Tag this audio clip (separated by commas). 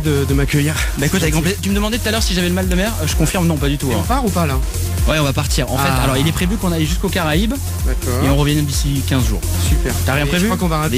Background music, Speech, Music